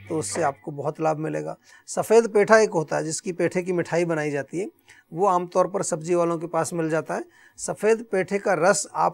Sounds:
Speech

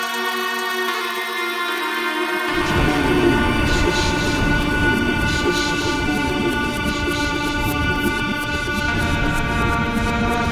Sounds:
Music, Electronic music

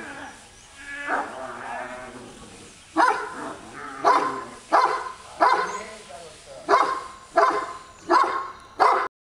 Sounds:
Speech, pets, Dog, Bow-wow, dog bow-wow

